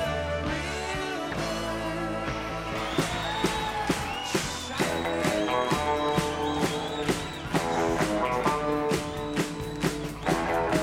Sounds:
rock and roll, music

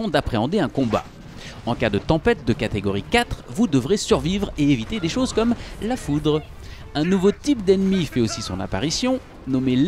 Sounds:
speech

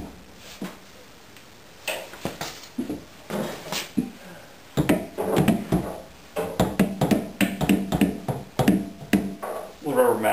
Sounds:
speech, inside a small room

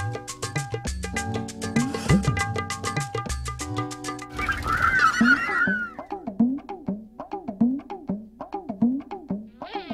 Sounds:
fly, bee or wasp, insect

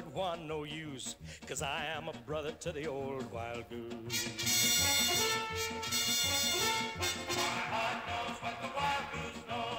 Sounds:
music

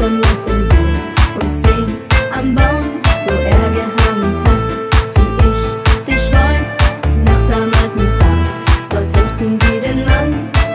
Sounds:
music, independent music

